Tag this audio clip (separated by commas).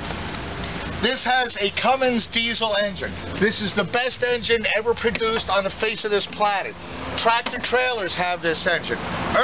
Speech, Vehicle